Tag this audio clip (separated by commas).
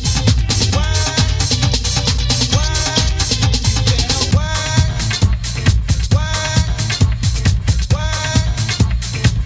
Music, Disco, Electronic music, House music